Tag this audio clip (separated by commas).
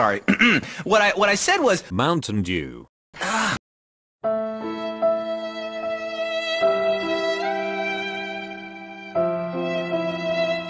Speech, Music